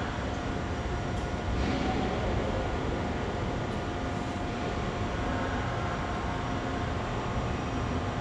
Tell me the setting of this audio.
subway station